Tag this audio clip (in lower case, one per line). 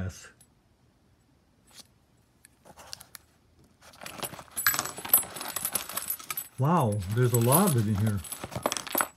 inside a small room
speech
crumpling